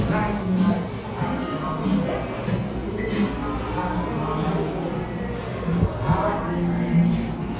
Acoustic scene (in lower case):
cafe